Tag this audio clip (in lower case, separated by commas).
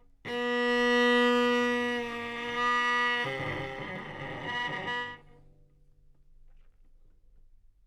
music, musical instrument, bowed string instrument